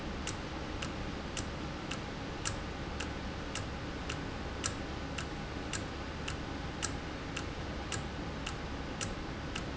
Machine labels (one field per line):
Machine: valve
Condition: normal